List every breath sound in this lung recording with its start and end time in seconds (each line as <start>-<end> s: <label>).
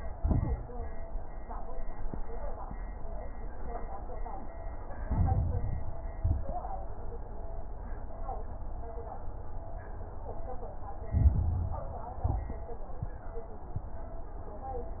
0.00-0.55 s: exhalation
0.00-0.55 s: crackles
5.00-6.04 s: inhalation
5.00-6.04 s: crackles
6.16-6.63 s: exhalation
6.16-6.63 s: crackles
11.10-12.14 s: inhalation
11.10-12.14 s: crackles
12.20-12.67 s: exhalation
12.20-12.67 s: crackles